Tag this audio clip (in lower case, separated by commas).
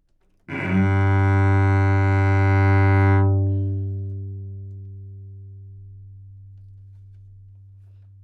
musical instrument, music, bowed string instrument